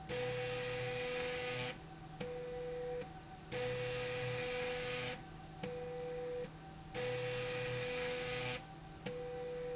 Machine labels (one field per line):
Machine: slide rail